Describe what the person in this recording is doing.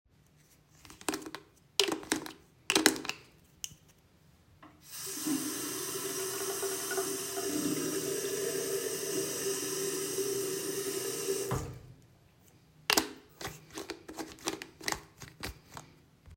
I opened the soap dispenser with a click and turned on the tap. Water ran continuously while I washed my hands under it. I then turned off the tap and closed the soap dispenser.